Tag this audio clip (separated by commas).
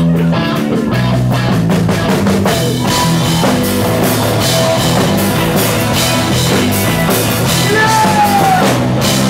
Music, Exciting music